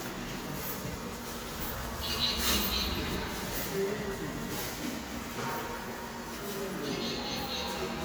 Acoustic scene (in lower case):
subway station